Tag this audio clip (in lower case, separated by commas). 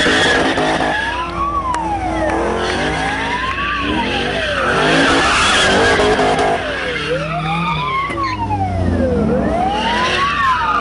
car passing by, emergency vehicle, police car (siren), siren